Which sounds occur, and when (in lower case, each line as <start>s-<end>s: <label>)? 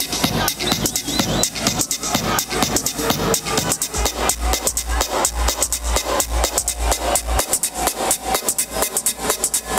0.0s-9.7s: music